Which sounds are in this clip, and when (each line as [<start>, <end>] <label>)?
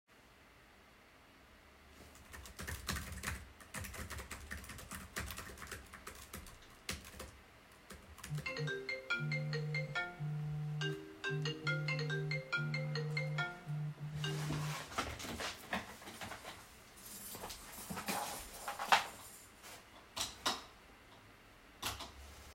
[2.30, 8.24] keyboard typing
[8.41, 14.73] phone ringing
[20.07, 20.68] light switch
[21.80, 22.11] light switch